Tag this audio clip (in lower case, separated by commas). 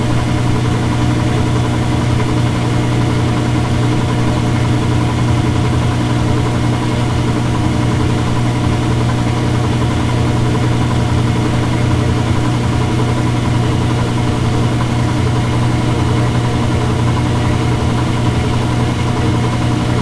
engine